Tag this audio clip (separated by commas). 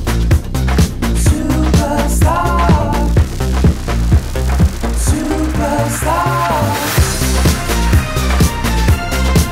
Music